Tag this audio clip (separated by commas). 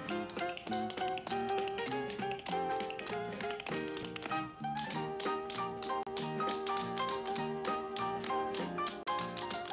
Tap, Music